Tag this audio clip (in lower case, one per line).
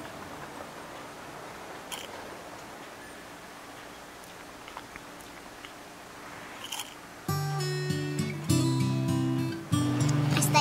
music